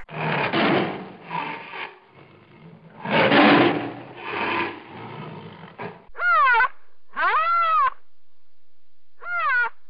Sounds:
elephant trumpeting

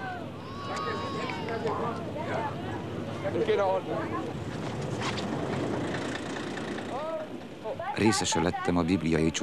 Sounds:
speech
sailboat

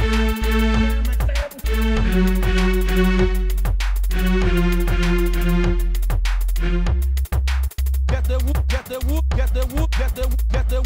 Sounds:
music

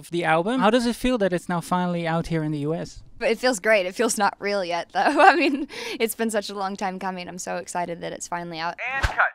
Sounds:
speech

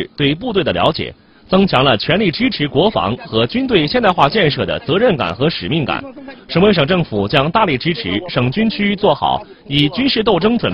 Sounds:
firing muskets

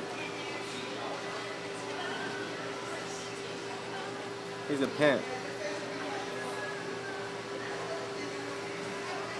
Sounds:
speech

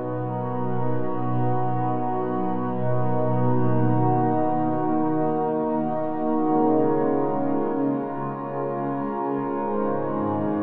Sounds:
music

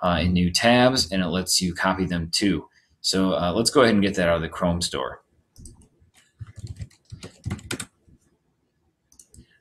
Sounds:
speech

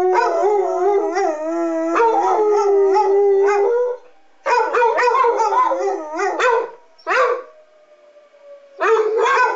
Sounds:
dog baying

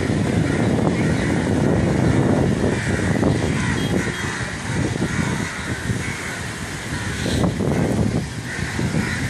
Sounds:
crow cawing

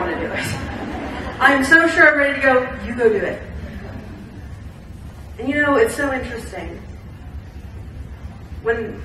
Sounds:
speech
laughter

